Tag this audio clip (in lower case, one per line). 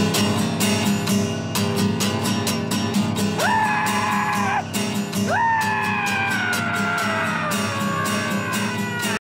musical instrument
guitar
music